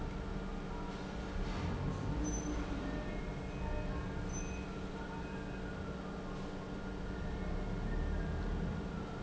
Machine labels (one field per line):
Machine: pump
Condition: normal